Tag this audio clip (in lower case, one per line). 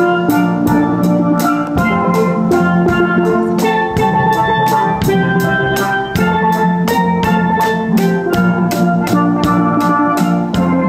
drum
bass drum
percussion